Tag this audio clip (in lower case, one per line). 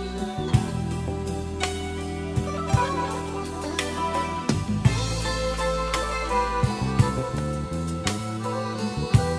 music